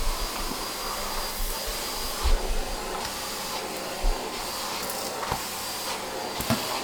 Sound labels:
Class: vacuum cleaner